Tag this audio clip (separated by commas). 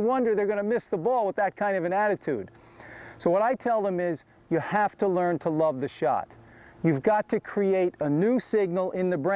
Speech